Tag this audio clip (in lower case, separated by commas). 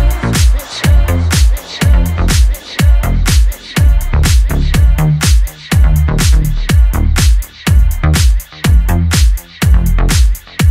dance music, music